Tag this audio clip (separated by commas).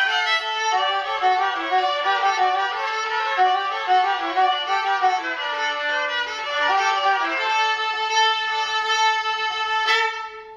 Musical instrument, Violin, Music